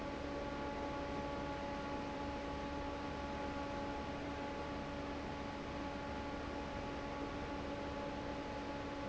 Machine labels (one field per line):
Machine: fan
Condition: normal